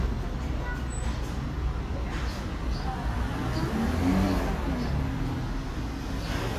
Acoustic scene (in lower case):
residential area